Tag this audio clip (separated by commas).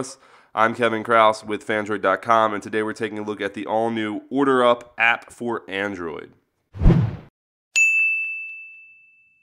inside a small room, Speech